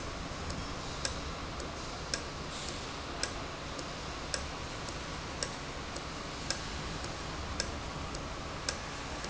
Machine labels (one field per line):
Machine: valve